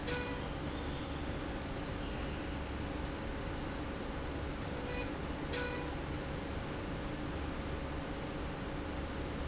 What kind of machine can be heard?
slide rail